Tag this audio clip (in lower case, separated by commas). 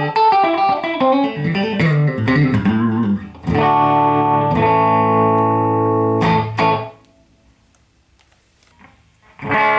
tapping (guitar technique), music, electric guitar, musical instrument, guitar, plucked string instrument